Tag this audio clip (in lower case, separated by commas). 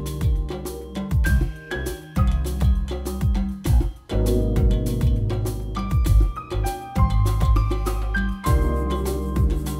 music